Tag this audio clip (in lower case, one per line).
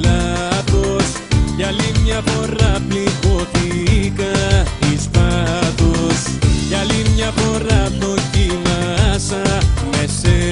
music